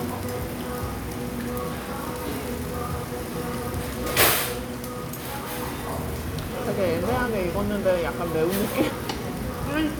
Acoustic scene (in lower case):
restaurant